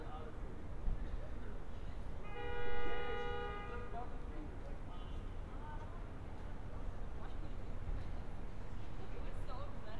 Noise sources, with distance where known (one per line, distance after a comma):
car horn, far
person or small group talking, far